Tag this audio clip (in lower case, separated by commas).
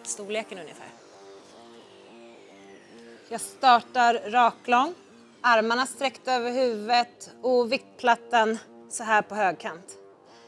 music, speech